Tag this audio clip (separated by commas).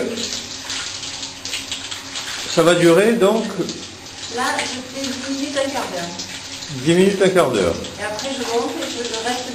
Speech